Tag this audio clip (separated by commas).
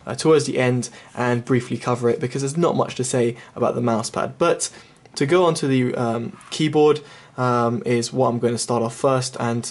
Speech